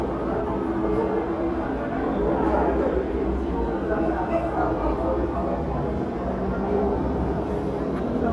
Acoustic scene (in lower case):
crowded indoor space